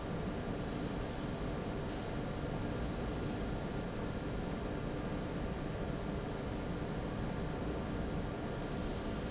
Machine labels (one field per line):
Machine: fan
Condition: abnormal